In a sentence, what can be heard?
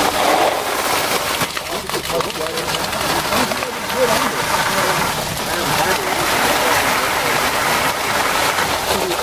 Low background conversation midst loud splashing and unsteady streams of pouring